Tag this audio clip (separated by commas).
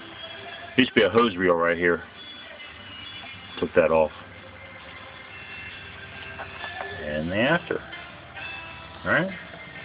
Music, Speech